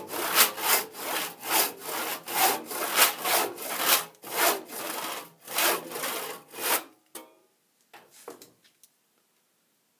A metal hand saw is hissing and scraping rhythmically